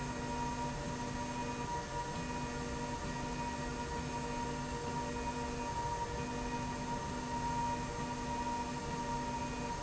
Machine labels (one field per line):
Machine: slide rail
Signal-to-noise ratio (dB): -6 dB